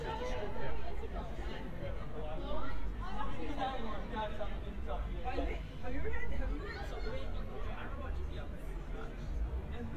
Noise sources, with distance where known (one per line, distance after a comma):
person or small group talking, near